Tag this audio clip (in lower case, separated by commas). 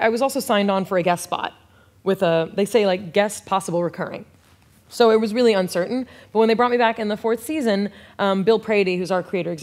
speech